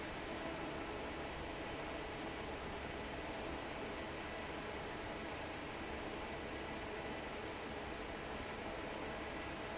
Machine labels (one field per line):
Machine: fan